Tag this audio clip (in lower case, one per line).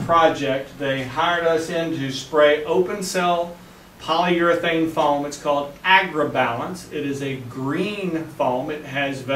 speech